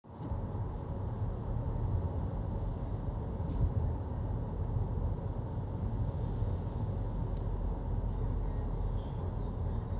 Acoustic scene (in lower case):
car